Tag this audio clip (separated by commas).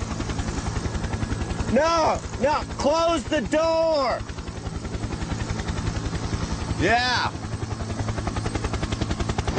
Speech, Vehicle